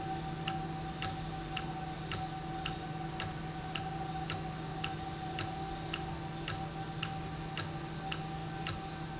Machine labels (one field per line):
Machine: valve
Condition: normal